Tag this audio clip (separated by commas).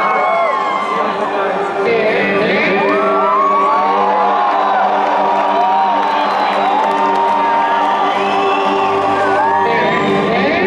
Music